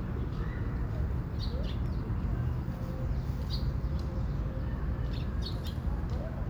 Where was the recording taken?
in a park